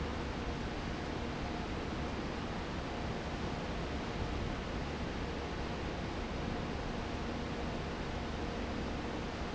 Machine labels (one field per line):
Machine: fan